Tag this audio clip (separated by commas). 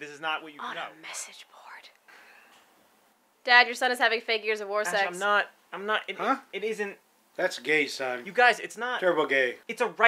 Speech